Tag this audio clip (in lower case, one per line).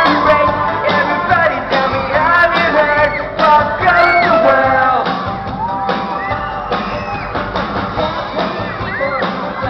music